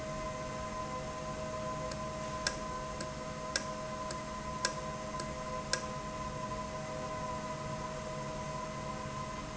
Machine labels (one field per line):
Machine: valve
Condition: normal